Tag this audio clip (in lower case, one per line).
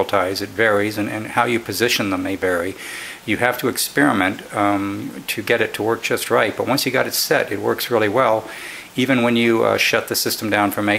speech